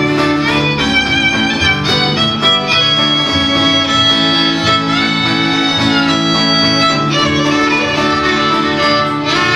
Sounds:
music, bowed string instrument

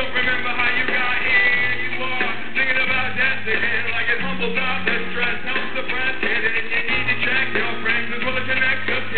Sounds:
music

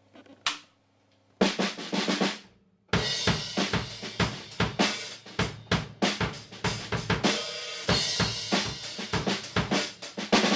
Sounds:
drum, rimshot, drum kit, bass drum, snare drum, percussion

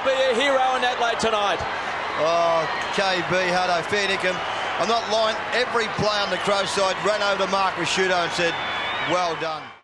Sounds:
speech

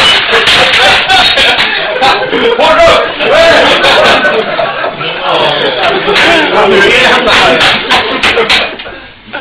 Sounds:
speech, chink

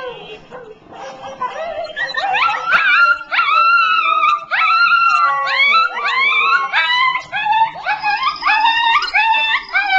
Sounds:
whimper (dog), animal, yip, dog, domestic animals

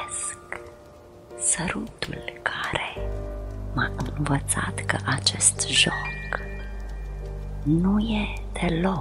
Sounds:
crackle, speech, music

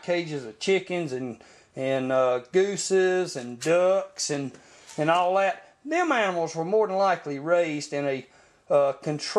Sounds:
speech

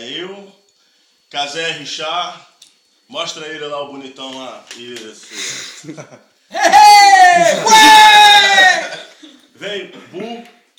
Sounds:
inside a large room or hall, speech

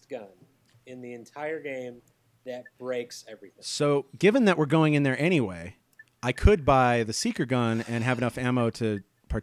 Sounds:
speech

